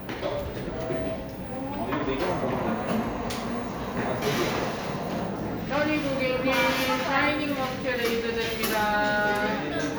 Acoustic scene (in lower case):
cafe